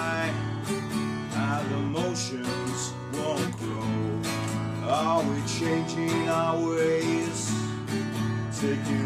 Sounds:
Musical instrument, Music, Guitar

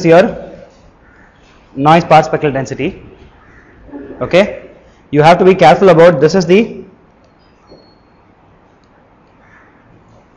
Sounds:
Speech

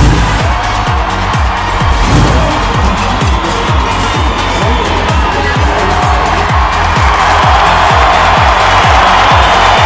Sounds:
Soundtrack music, Disco, Music

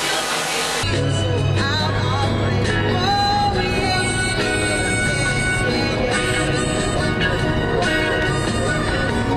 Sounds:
Music

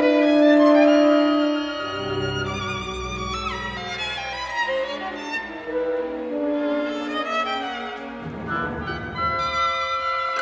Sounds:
Music, fiddle

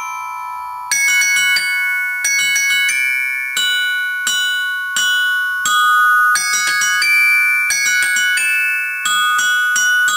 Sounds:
playing glockenspiel

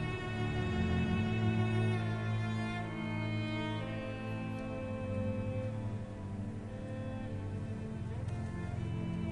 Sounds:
Music, Musical instrument, fiddle

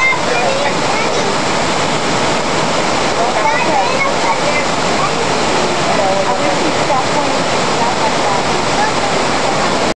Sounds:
Waterfall

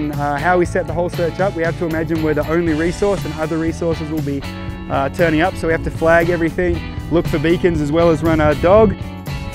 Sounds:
Speech, Music

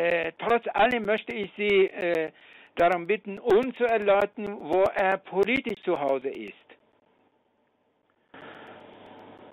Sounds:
Speech

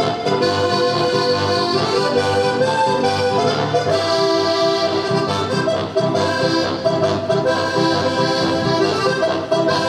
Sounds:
Music

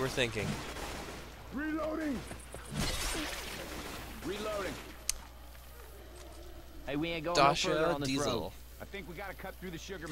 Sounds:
Speech, Rain on surface

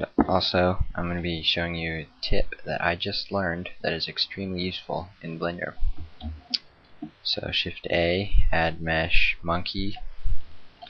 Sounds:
Speech

